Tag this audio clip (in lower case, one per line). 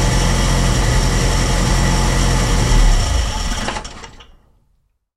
idling
engine